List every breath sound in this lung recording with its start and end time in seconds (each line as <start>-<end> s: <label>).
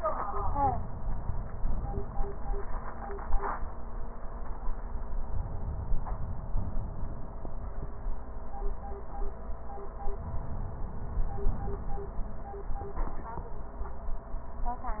5.33-7.40 s: inhalation
9.89-12.20 s: inhalation